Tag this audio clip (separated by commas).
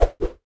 swoosh